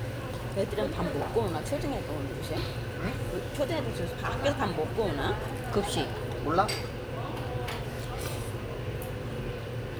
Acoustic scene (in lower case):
restaurant